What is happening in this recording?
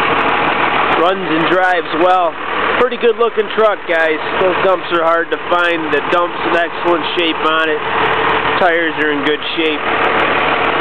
Man speaking with a running engine in the background